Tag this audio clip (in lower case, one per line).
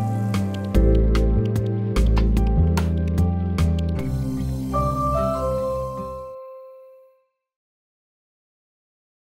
music